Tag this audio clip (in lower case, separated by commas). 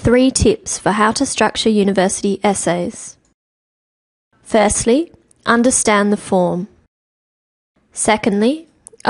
speech